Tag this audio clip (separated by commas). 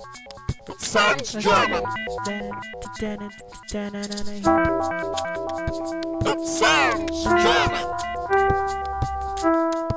Music, Sound effect, Speech